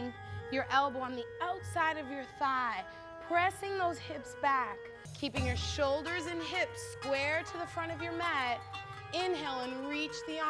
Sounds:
music, speech

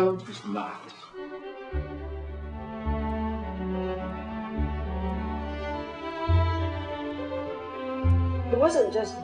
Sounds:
cello, speech, music

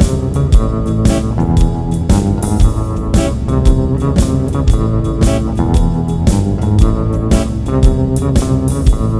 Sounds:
guitar, musical instrument, bass guitar, music, plucked string instrument

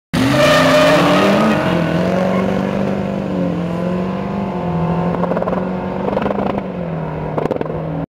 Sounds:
vehicle, vroom, car, medium engine (mid frequency)

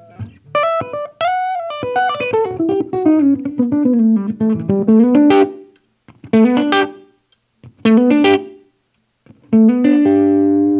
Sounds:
musical instrument, strum, music, plucked string instrument, guitar

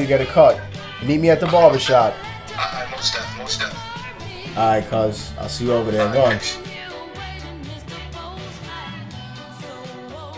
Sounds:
speech, music, background music

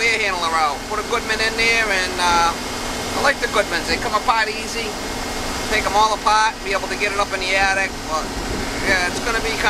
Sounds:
air conditioning, speech, vehicle

